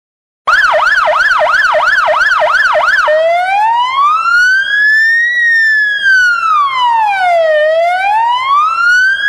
A loud siren is going off